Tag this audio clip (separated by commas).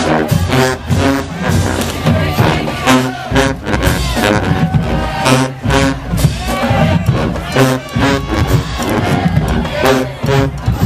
Music